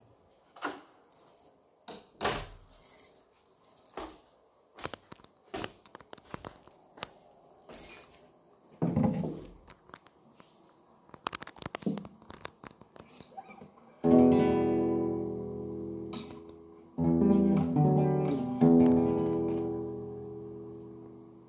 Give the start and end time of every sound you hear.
[0.54, 1.04] door
[1.03, 1.88] keys
[1.87, 2.04] door
[1.88, 2.20] light switch
[2.19, 2.58] door
[2.58, 4.32] keys
[4.77, 7.10] keyboard typing
[7.62, 8.19] keys
[11.08, 13.69] keyboard typing

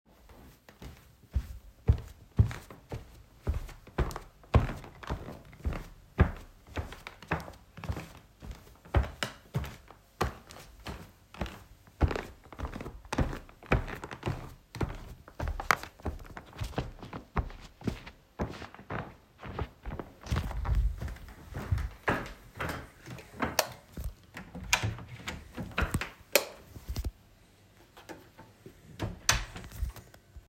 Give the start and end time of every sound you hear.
[0.69, 24.34] footsteps
[23.28, 23.89] light switch
[24.52, 25.09] door
[26.07, 27.23] light switch
[28.84, 29.96] door

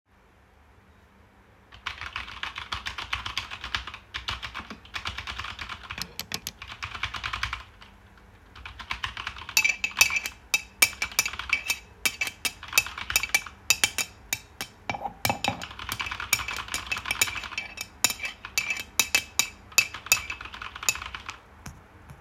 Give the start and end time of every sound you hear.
[1.68, 8.00] keyboard typing
[8.52, 13.84] keyboard typing
[9.51, 21.23] cutlery and dishes
[15.64, 17.81] keyboard typing
[18.50, 18.89] keyboard typing
[19.70, 21.54] keyboard typing

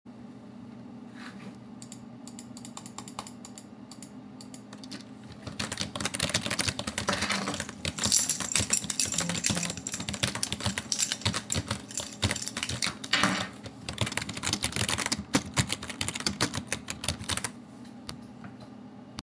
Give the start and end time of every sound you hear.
[5.25, 17.61] keyboard typing
[7.40, 13.53] keys
[9.13, 10.28] phone ringing

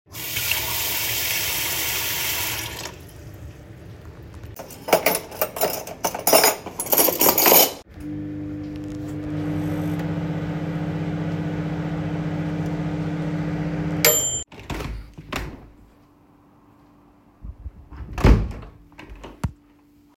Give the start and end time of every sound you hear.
[0.08, 3.03] running water
[4.56, 7.81] cutlery and dishes
[7.90, 15.66] microwave
[18.09, 19.55] microwave

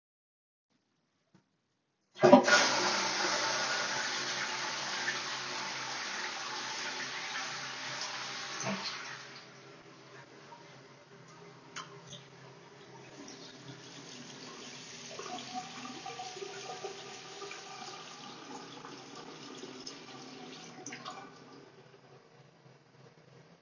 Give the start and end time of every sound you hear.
[2.08, 9.42] toilet flushing
[12.80, 21.88] running water

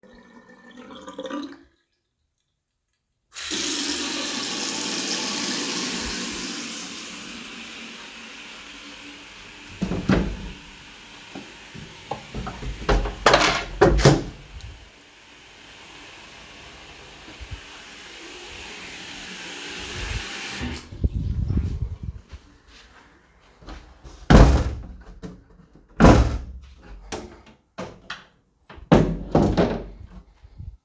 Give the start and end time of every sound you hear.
[3.35, 20.91] running water
[9.78, 10.54] window
[12.74, 14.51] window
[24.19, 25.39] window
[25.93, 27.40] window
[28.82, 30.41] window

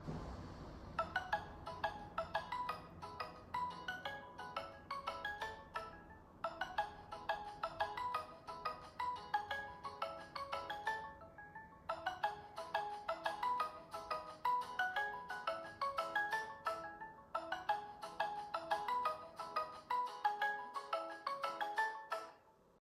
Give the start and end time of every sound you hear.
[0.93, 22.34] phone ringing

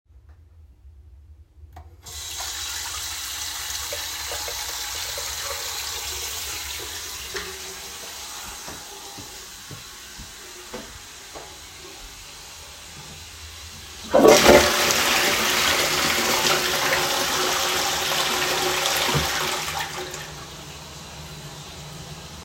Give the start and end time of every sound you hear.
[1.93, 22.44] running water
[8.70, 12.16] footsteps
[14.04, 20.38] toilet flushing

